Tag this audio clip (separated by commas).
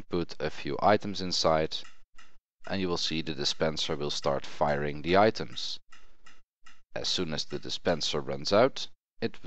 Speech